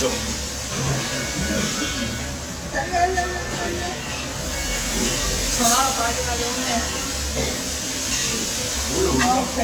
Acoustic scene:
restaurant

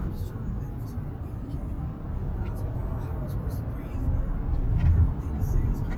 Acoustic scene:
car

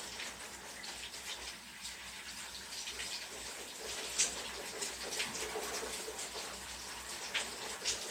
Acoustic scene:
restroom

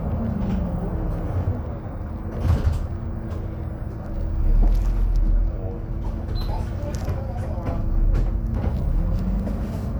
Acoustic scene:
bus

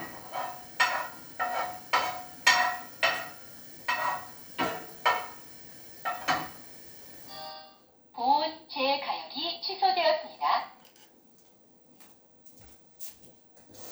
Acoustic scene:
kitchen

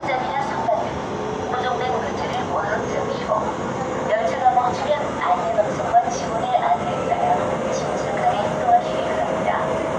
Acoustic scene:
subway train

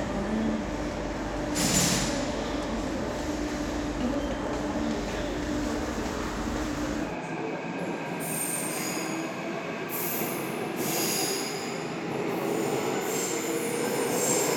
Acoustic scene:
subway station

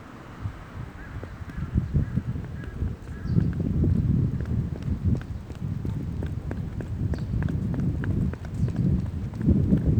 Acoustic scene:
park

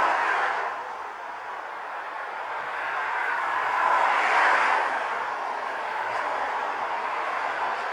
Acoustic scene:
street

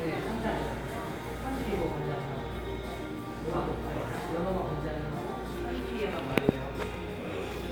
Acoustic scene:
cafe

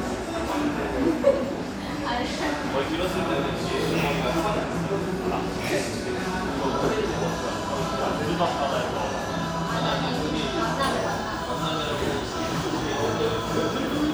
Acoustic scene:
cafe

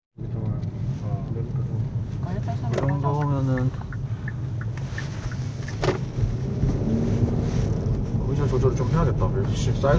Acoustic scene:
car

